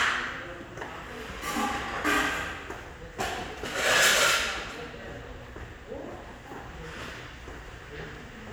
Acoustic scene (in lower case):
restaurant